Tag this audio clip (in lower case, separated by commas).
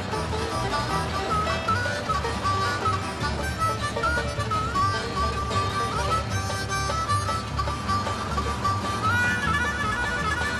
music, bagpipes